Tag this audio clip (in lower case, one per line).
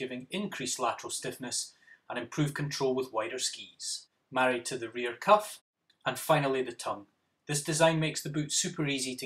speech